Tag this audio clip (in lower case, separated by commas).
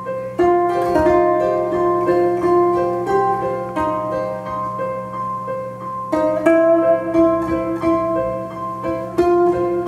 music, wedding music